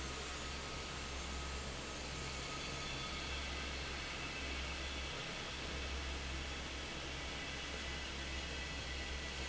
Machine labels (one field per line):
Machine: fan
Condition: normal